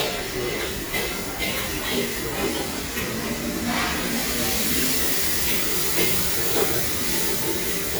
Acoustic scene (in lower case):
restaurant